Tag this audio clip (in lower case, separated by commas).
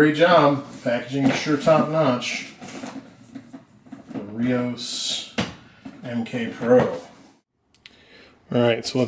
inside a small room, speech